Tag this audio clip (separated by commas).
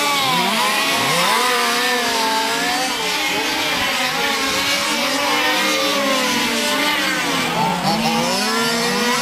Truck